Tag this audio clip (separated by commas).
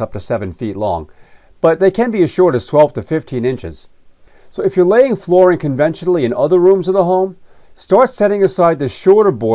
Speech